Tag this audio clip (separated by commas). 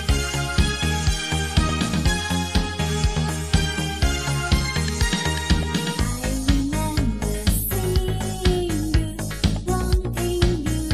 Music